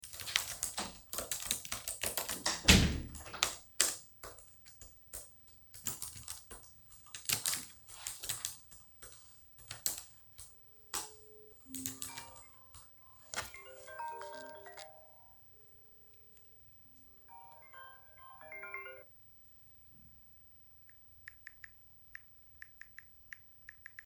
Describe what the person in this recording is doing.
I was typing with keyboard while my colleague entered the room, then my phone started ringing and I started texting